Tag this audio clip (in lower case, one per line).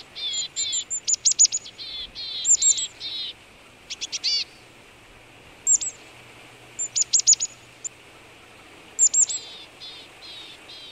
black capped chickadee calling